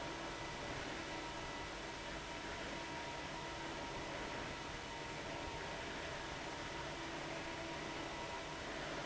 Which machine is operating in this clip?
fan